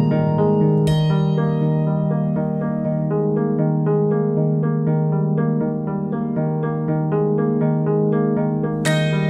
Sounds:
harp

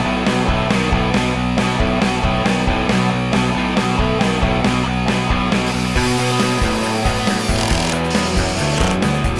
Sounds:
music

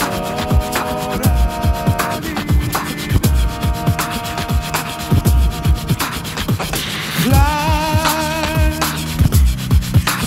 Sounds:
beat boxing

